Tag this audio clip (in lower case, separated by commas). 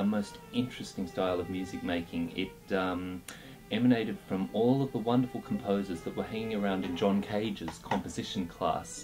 music, speech